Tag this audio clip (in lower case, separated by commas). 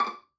bowed string instrument, music, musical instrument